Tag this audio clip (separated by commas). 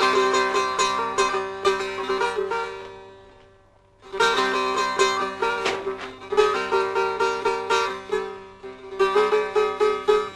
Banjo, Music, Mandolin